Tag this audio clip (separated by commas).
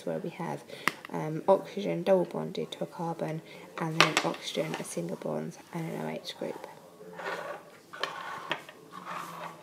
inside a small room, Speech